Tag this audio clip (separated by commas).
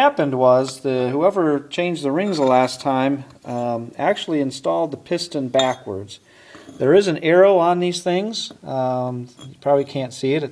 Speech